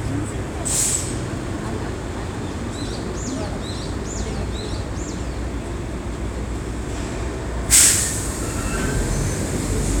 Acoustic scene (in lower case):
street